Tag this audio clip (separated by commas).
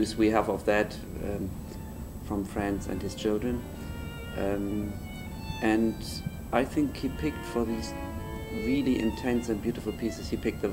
Violin, Musical instrument, Music, Speech